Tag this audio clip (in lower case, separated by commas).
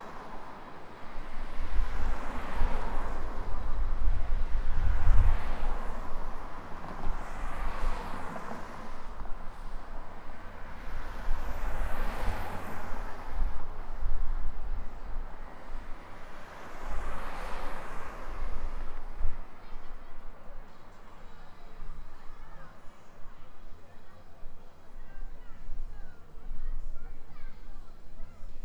vehicle, traffic noise, motor vehicle (road)